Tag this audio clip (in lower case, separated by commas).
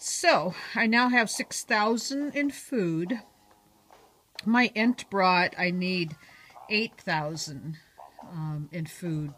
speech